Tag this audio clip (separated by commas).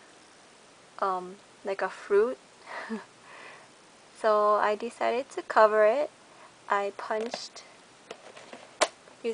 Speech